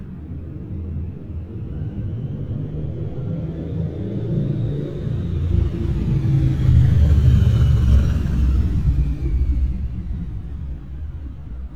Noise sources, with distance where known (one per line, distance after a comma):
engine of unclear size, near